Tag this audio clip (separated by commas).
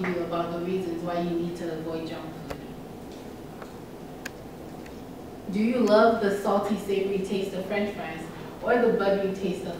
Speech, woman speaking, Narration